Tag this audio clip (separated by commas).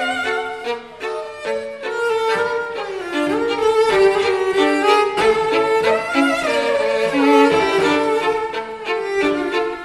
fiddle, Music